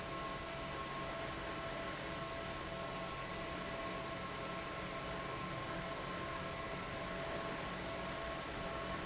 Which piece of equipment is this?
fan